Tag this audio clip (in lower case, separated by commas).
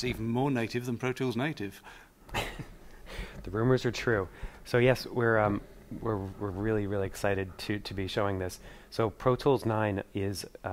speech